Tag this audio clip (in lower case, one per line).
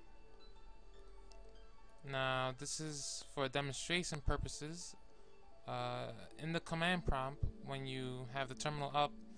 speech